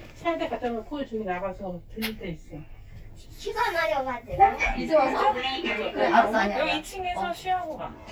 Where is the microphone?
in an elevator